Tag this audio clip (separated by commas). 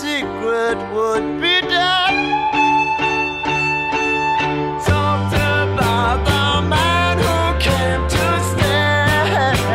Music